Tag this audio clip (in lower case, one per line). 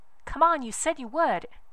human voice
woman speaking
speech